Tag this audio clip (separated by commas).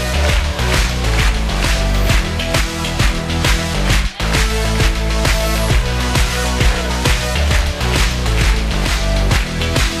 Music